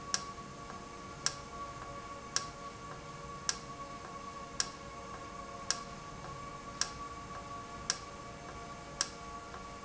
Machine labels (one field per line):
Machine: valve